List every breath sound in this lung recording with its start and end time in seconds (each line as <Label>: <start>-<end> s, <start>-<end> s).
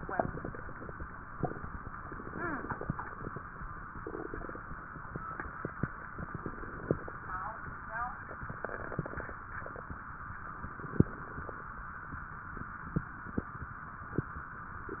Inhalation: 6.26-7.31 s, 10.57-11.61 s
Crackles: 6.26-7.31 s, 10.57-11.61 s